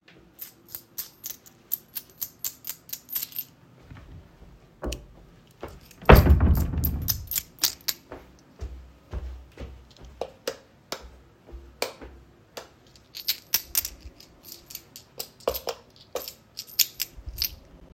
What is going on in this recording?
I swung my keychain walked in my room, so the sounds overlapped, I opened and closed the drawer, walked to the light switch to turn it on and off and during that I play around with my keychain.